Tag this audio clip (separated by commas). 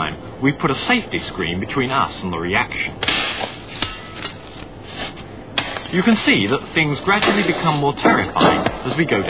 inside a small room, Speech